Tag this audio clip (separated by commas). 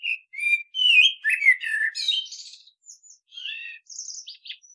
Bird, Animal, Wild animals